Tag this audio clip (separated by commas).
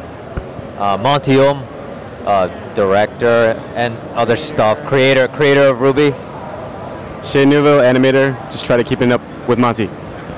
Speech